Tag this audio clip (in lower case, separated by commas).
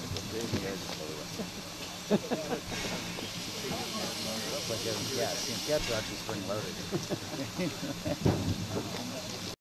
vehicle, speech